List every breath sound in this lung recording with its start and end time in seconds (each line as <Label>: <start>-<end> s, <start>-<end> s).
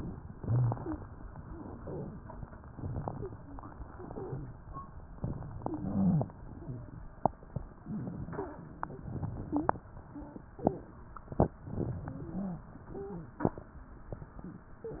Inhalation: 0.27-1.10 s, 2.71-3.74 s, 5.20-6.22 s, 7.84-8.56 s, 11.66-12.58 s
Exhalation: 1.48-2.32 s, 3.87-4.59 s, 6.38-7.00 s, 9.13-9.85 s
Wheeze: 0.40-1.04 s, 1.73-2.10 s, 3.13-3.63 s, 4.12-4.49 s, 5.60-6.31 s, 6.62-6.90 s, 7.84-8.11 s, 8.32-8.67 s, 9.42-9.77 s, 10.12-10.47 s, 12.04-12.71 s, 12.99-13.47 s